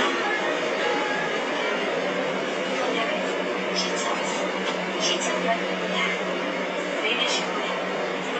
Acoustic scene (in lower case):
subway train